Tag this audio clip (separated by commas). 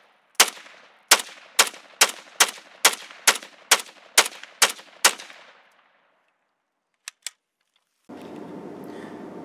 gunfire